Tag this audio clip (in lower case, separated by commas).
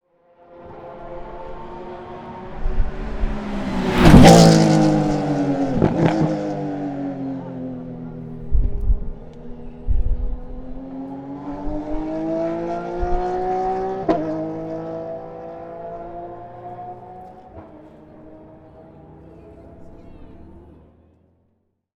engine, motor vehicle (road), vehicle, auto racing, accelerating, car